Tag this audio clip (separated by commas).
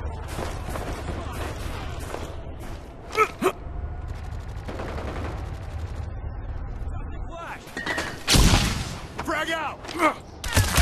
Speech